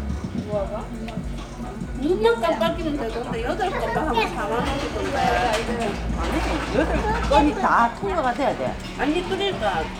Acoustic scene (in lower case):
crowded indoor space